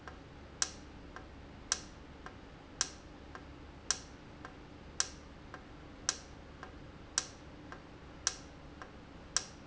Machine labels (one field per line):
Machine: valve